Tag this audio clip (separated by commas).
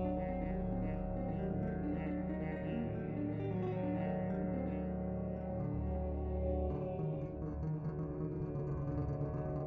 Music